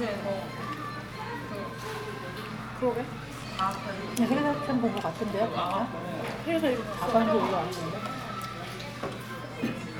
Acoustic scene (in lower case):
crowded indoor space